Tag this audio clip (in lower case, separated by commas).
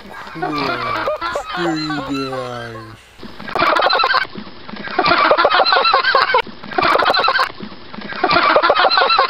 honk, goose, fowl